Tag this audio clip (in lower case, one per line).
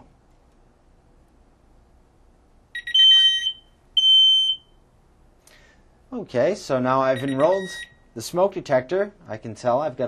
smoke detector
speech